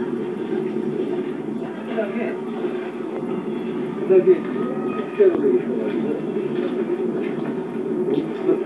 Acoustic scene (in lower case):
park